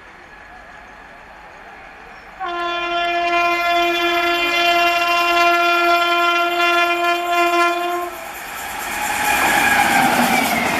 A train car whistle, then speeding by